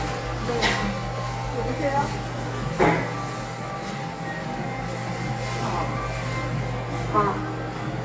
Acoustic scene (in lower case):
crowded indoor space